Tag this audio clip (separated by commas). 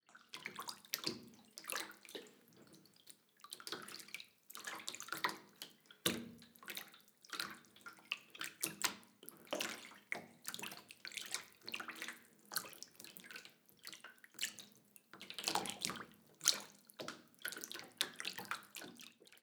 Domestic sounds, Bathtub (filling or washing)